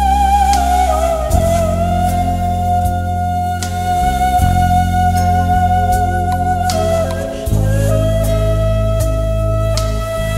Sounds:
Music, Background music, Soundtrack music

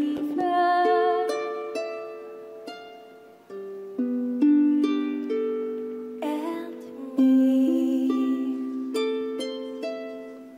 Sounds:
playing harp

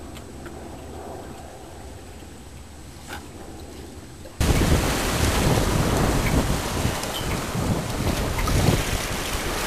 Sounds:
sailing ship, Vehicle

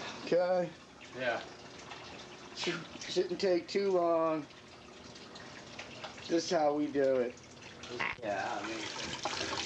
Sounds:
Stream, Speech, Gurgling

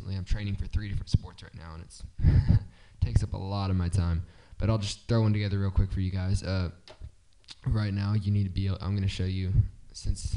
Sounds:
Speech

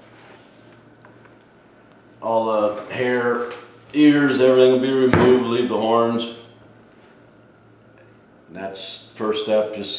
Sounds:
Speech

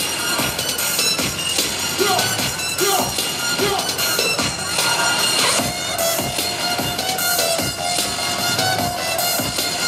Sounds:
Music, Exciting music

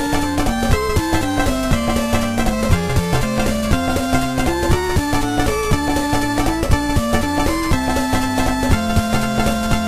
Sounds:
Music

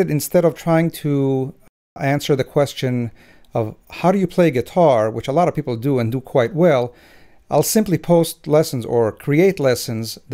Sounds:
Speech

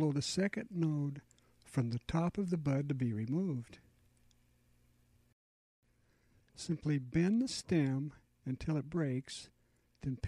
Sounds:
Speech

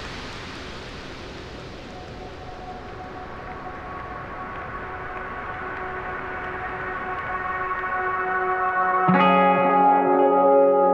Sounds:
Music

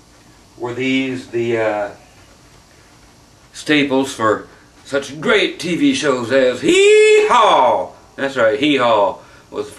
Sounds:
Speech

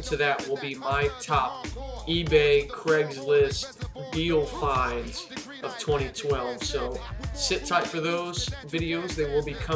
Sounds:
Speech, Music

